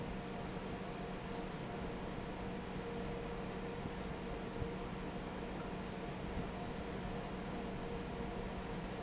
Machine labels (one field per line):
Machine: fan